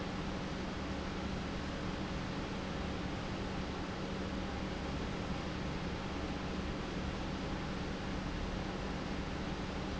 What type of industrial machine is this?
pump